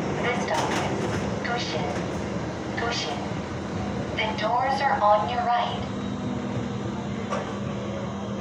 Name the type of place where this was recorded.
subway train